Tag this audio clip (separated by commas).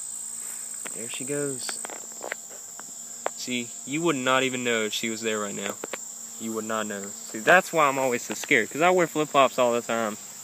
outside, rural or natural, Speech